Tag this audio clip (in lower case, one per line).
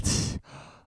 respiratory sounds
breathing